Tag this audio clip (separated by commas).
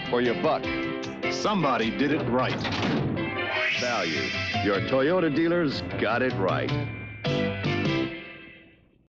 Music, Speech